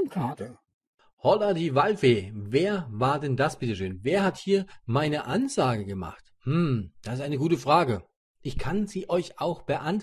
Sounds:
speech

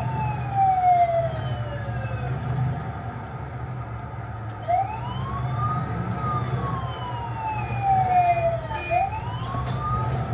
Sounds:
siren, police car (siren), vehicle

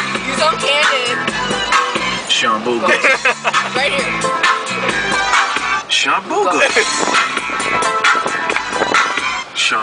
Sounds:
speech, vehicle, music, motor vehicle (road)

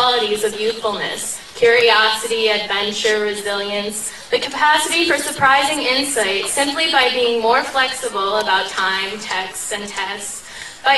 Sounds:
woman speaking, speech

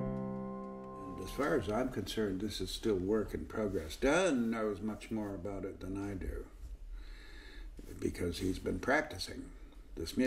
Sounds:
speech, music

